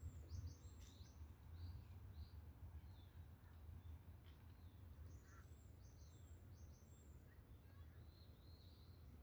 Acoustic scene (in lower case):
park